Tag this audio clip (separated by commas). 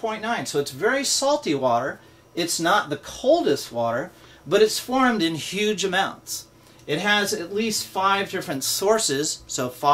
Speech